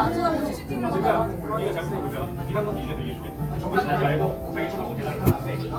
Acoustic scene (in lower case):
crowded indoor space